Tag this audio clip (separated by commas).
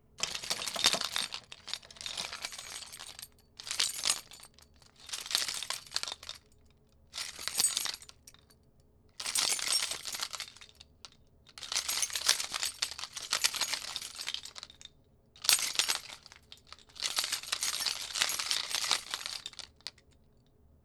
Keys jangling, Domestic sounds